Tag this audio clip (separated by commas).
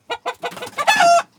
Animal, Fowl, livestock, Chicken